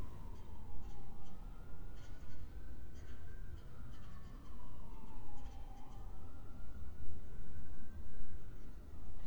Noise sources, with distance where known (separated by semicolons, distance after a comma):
siren, far